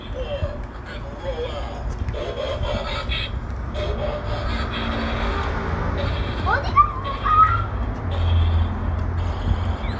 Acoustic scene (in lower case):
residential area